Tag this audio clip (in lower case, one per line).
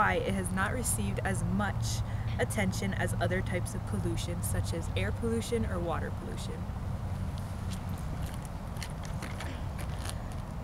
speech